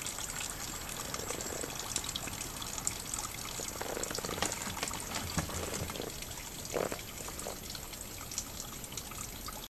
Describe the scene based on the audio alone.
Water running quickly